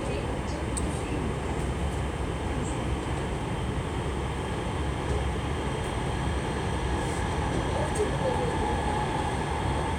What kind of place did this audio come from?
subway train